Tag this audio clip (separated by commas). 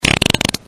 Fart